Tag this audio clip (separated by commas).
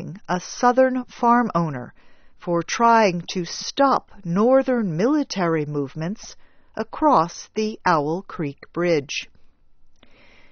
Speech